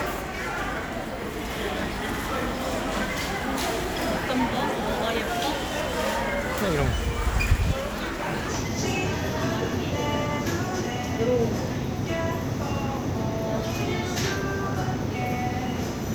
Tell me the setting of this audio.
crowded indoor space